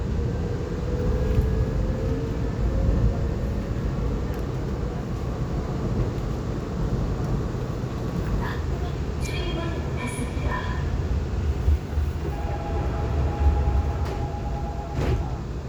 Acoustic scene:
subway train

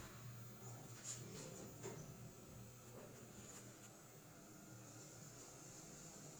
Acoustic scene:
elevator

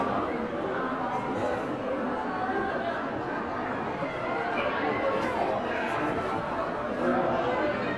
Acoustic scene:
crowded indoor space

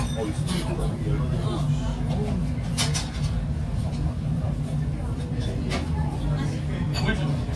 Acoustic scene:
crowded indoor space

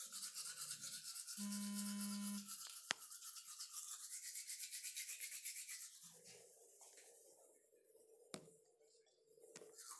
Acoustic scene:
restroom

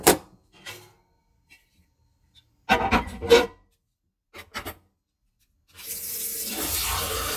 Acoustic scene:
kitchen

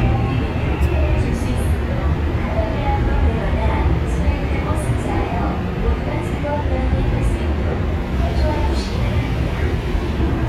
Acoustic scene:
subway train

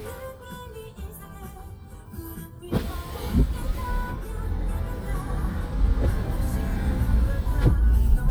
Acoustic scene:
car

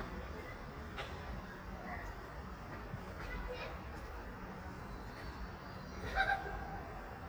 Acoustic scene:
residential area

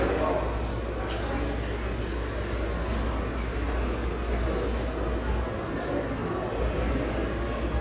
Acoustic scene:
subway station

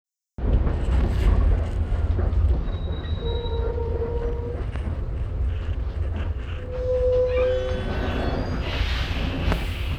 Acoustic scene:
bus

